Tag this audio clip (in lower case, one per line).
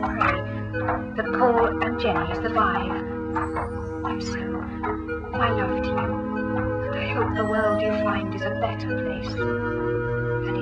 music
speech